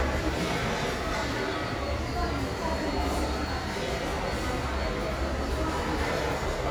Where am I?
in a restaurant